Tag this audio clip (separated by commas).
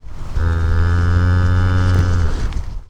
Animal, livestock